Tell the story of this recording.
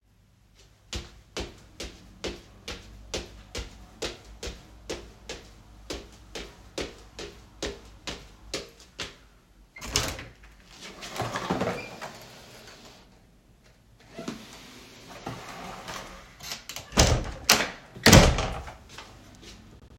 I placed the phone in a fixed position in the hallway. First, footsteps are clearly audible, and then the door is opened. Both target events occur in the same continuous domestic scene.